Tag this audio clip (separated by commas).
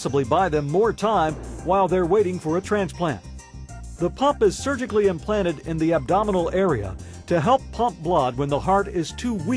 Speech, Music